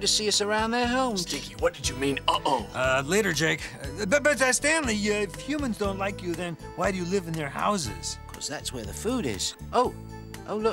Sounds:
speech, music

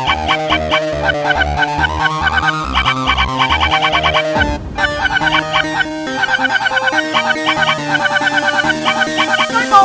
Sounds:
music

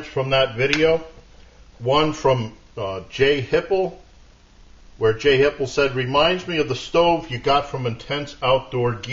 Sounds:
speech

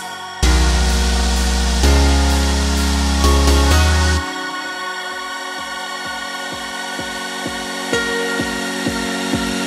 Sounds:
music

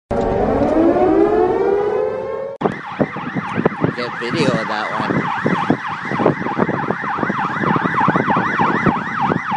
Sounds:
police car (siren), speech

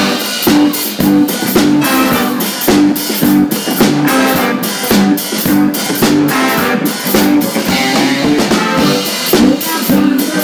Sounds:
middle eastern music, music

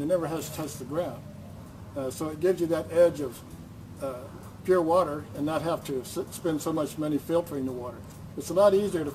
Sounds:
speech

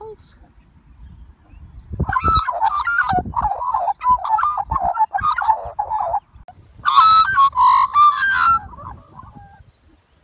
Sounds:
magpie calling

